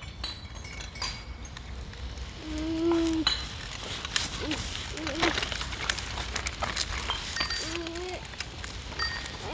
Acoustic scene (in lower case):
park